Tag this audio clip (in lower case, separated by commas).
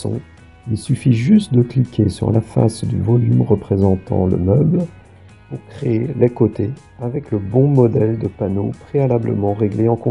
music, speech